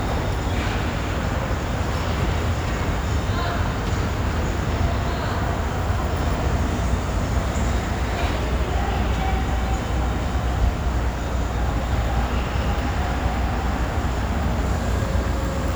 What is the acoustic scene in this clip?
subway station